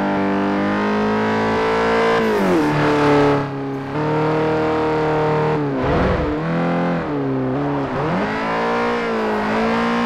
Continuous running vehicle